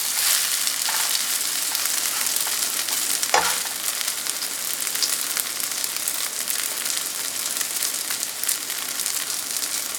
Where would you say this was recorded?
in a kitchen